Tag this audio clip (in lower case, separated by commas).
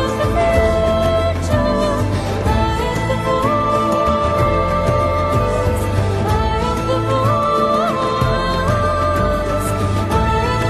theme music, music